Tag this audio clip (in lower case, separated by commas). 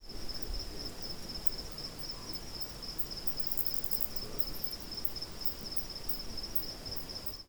insect, wild animals, animal